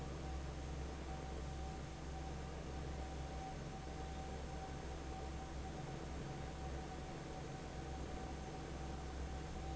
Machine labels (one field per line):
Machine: fan